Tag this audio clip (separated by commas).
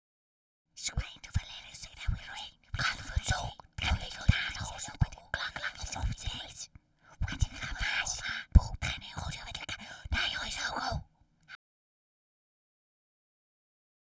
Human voice, Whispering